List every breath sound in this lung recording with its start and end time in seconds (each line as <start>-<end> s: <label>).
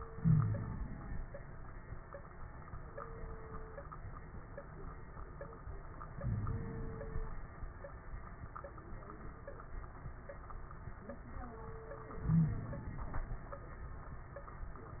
0.00-1.22 s: inhalation
0.15-0.84 s: wheeze
6.14-7.38 s: inhalation
6.22-6.62 s: wheeze
12.17-13.41 s: inhalation
12.29-12.60 s: wheeze